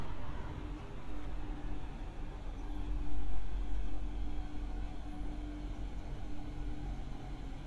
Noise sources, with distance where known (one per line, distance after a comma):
medium-sounding engine